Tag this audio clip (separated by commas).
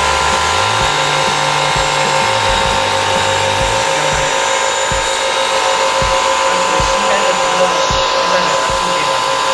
vacuum cleaner cleaning floors